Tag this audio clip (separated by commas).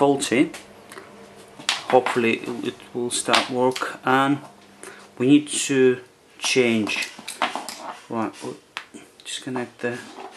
Speech